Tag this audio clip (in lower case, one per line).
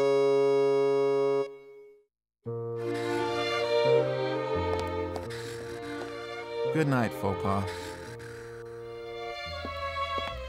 electronic music
music